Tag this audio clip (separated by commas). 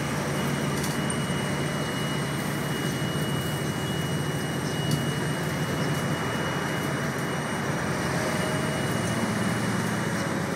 Vehicle, Traffic noise